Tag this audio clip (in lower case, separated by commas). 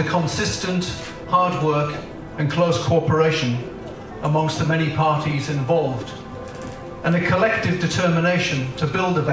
speech